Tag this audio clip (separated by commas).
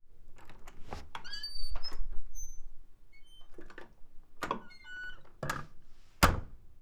Squeak